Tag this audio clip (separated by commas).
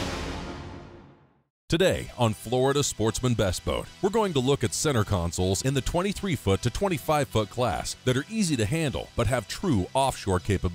Speech, Music